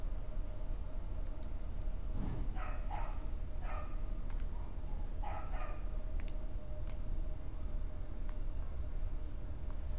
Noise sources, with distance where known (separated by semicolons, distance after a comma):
dog barking or whining